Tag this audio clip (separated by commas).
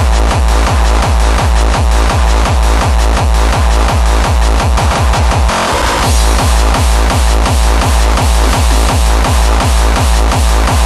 Electronic music, Music